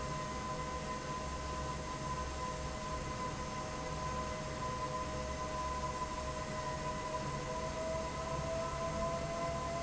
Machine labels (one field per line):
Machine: fan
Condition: normal